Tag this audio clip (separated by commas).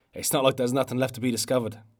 Human voice, Speech